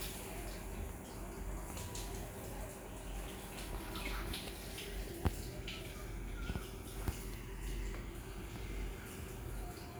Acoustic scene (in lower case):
restroom